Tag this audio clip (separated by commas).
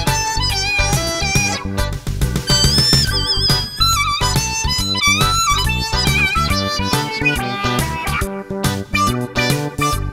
woodwind instrument, Harmonica